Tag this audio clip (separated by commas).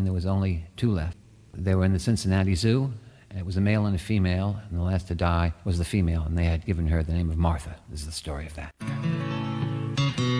Music, Speech